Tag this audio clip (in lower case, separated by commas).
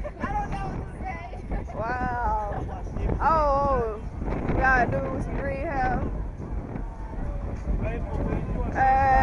speech